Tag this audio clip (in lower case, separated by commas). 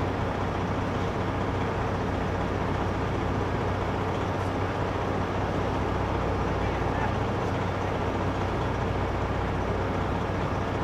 speech